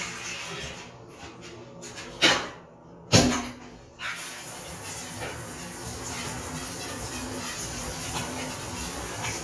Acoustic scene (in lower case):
restroom